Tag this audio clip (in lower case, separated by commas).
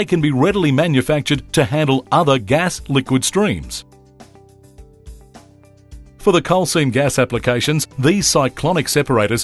speech, music